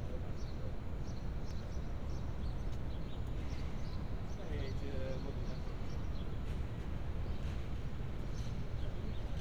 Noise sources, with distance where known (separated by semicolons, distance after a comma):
person or small group talking